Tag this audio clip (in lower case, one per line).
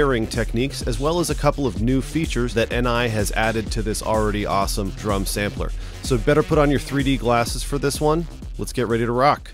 music
speech